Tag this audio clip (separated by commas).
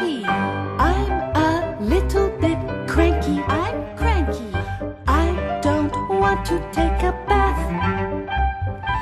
Music